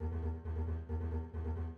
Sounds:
Musical instrument, Music, Bowed string instrument

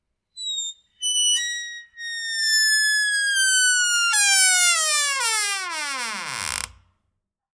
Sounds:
Squeak

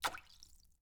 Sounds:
Splash, Liquid

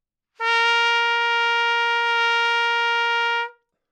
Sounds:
Brass instrument, Musical instrument, Music, Trumpet

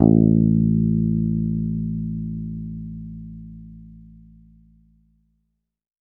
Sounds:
Music, Musical instrument, Bass guitar, Guitar, Plucked string instrument

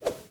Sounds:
swoosh

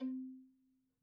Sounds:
Bowed string instrument, Music, Musical instrument

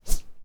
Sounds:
Whoosh

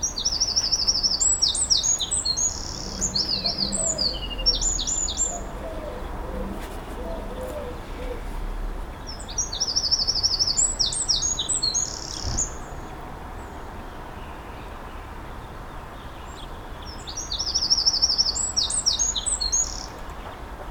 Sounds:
Wild animals, Animal, Bird, bird song

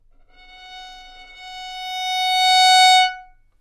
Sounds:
Musical instrument, Bowed string instrument, Music

